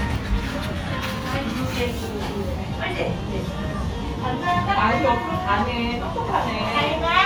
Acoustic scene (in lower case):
cafe